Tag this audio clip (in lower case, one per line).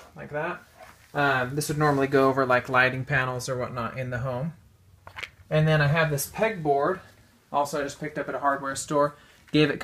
speech